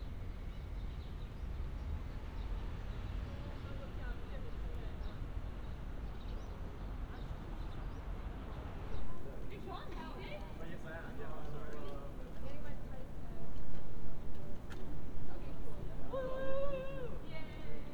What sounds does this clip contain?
person or small group talking